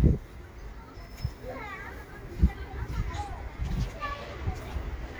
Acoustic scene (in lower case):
residential area